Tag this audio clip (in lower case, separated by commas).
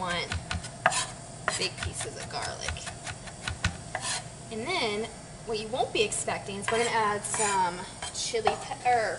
frying (food)